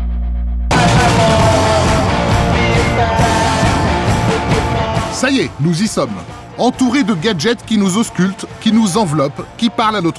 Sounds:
electronic music, music, speech, techno

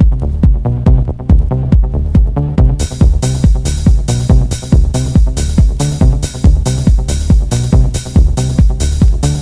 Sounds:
music

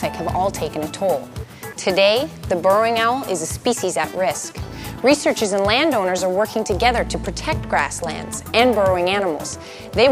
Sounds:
speech, music

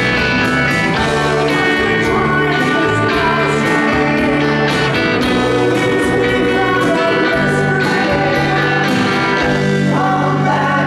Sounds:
music, singing

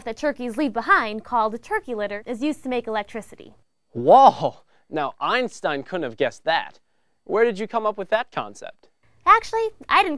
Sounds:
speech

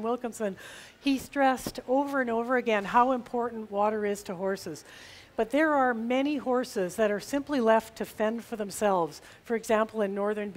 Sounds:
speech

